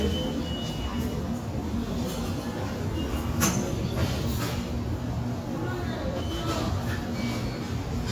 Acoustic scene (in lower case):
subway station